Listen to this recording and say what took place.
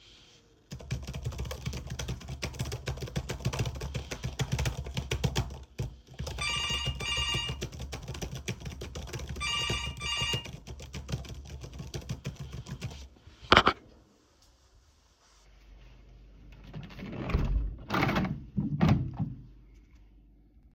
I was working on something in computer and while I was doing that I got a notification on my phone, later I opened the window